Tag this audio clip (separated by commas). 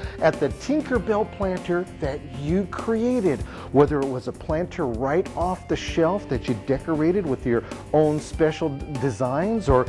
Speech, Music